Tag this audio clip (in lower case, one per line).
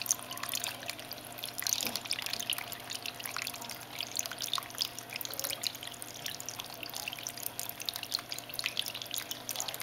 speech